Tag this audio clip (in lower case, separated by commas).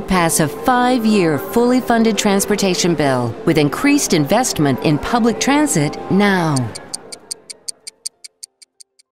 music, tick, tick-tock, speech